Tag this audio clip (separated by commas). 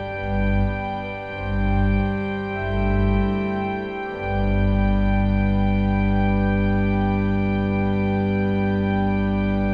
playing electronic organ